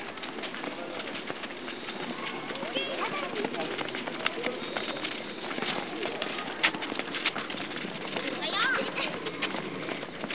People walking, distant speech